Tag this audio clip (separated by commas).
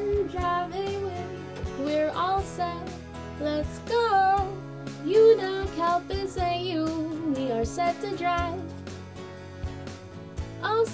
Female singing, Music